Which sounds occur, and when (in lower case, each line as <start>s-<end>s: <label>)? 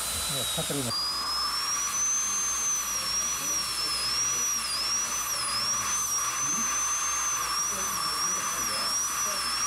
0.0s-9.6s: dental drill
0.3s-0.4s: male speech
0.5s-0.9s: male speech